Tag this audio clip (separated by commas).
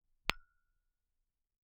Glass, Tap